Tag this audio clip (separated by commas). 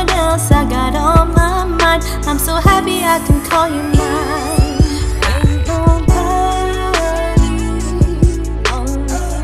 Music, Rhythm and blues